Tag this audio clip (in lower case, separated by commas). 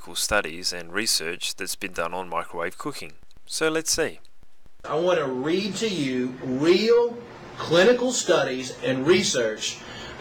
speech